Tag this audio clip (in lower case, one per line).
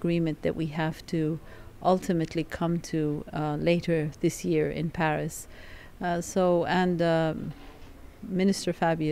speech
female speech